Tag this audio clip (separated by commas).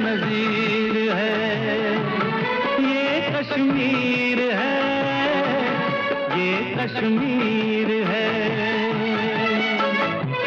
Music, Music of Bollywood